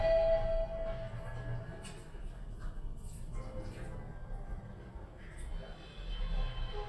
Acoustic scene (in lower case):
elevator